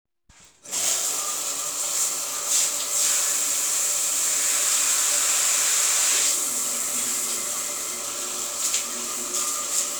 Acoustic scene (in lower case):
restroom